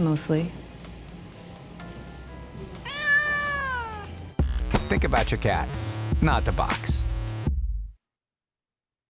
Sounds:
Music, Speech, Meow

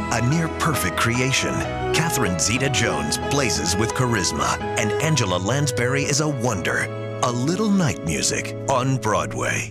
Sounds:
Speech, Music

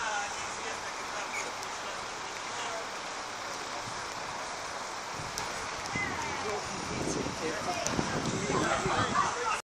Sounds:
Speech

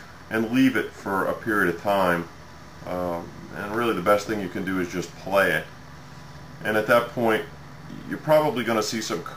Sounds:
Speech

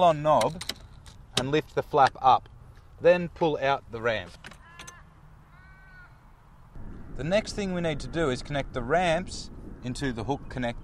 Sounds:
Speech

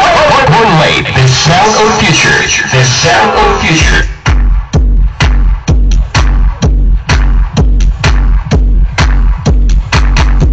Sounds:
Speech

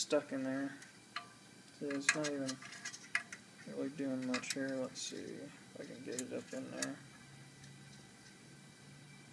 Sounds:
Speech

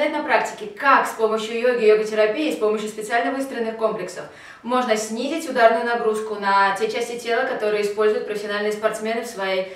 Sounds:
Speech, inside a small room

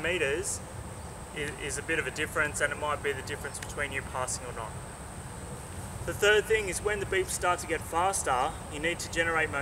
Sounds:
Speech

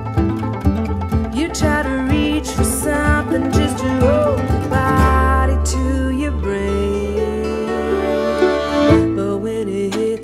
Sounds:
Music, Country

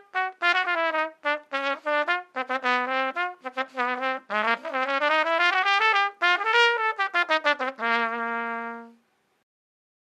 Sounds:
playing cornet

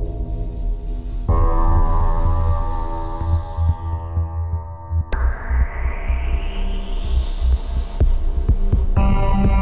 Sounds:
Music

